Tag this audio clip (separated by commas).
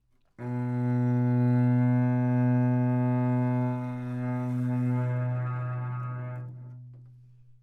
Bowed string instrument, Musical instrument, Music